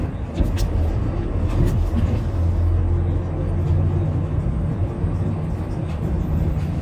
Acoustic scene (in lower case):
bus